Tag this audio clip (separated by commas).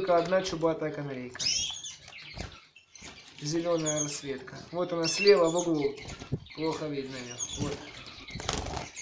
canary calling